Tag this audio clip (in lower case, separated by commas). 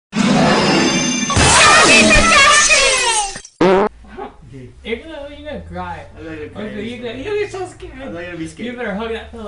speech, music